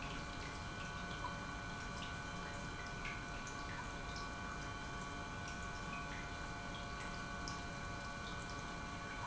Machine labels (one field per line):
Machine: pump